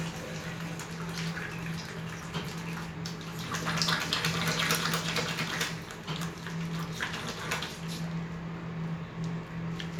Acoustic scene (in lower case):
restroom